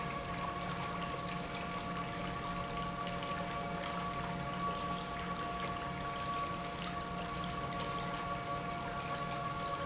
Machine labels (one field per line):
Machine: pump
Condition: normal